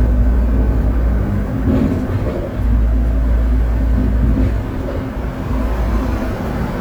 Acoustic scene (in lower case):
bus